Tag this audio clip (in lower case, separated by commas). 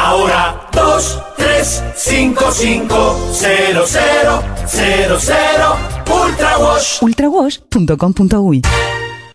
music, speech